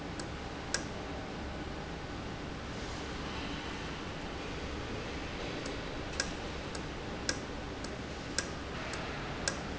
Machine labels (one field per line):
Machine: valve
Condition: normal